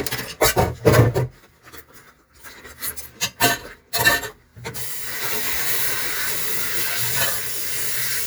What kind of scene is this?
kitchen